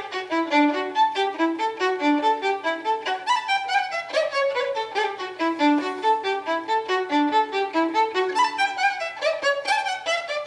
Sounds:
fiddle, Musical instrument, Music, Violin

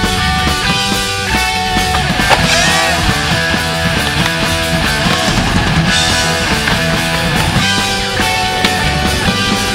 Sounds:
Music, Skateboard, Punk rock

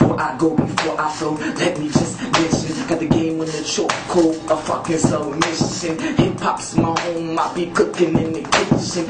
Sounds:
Music, Tap

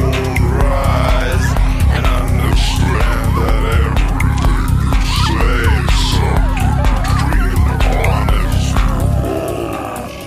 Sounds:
Angry music, Music

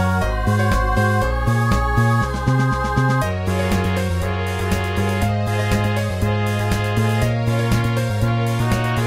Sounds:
Music

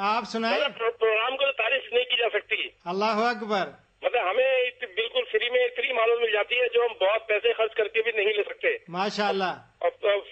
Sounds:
Speech

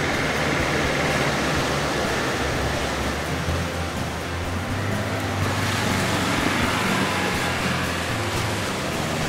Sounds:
Boat, surf, Motorboat, Wind

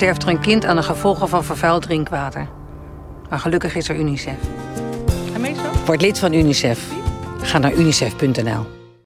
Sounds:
Speech, Music

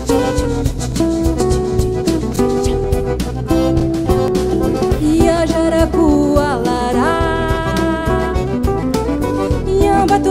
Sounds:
Music

